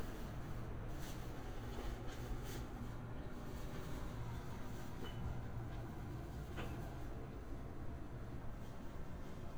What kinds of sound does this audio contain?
background noise